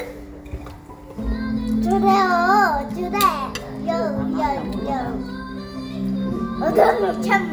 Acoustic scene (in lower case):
crowded indoor space